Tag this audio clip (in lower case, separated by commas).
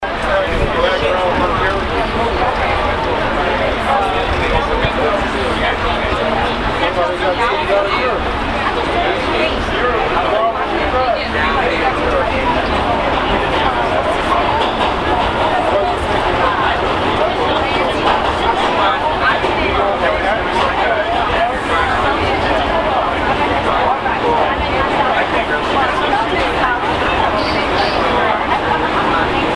rail transport, vehicle, underground